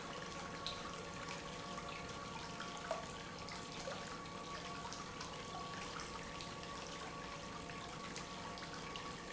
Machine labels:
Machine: pump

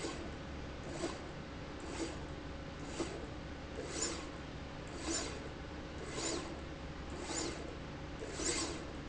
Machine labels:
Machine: slide rail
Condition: abnormal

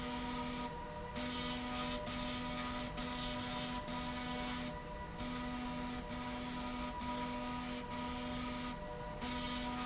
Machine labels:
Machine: slide rail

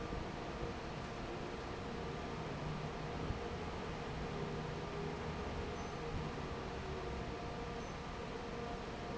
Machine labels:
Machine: fan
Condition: normal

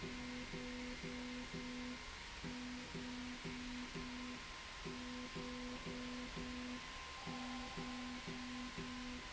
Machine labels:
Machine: slide rail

